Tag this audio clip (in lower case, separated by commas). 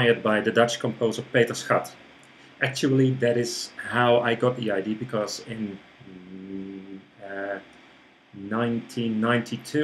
speech